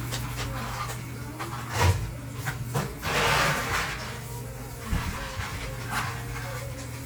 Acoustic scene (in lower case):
cafe